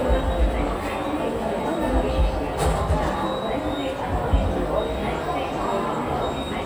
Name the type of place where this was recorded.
subway station